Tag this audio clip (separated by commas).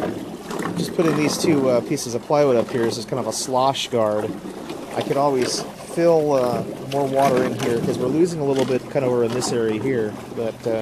Speech